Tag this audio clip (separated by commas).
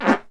Fart